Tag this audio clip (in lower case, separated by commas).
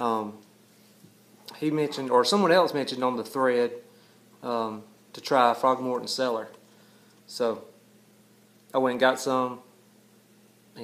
speech